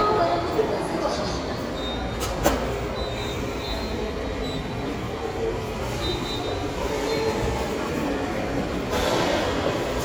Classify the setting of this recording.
subway station